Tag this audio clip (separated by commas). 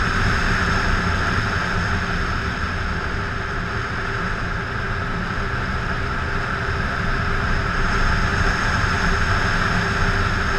Vehicle, Motorcycle